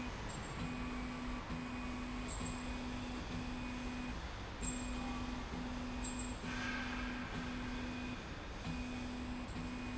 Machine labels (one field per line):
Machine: slide rail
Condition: normal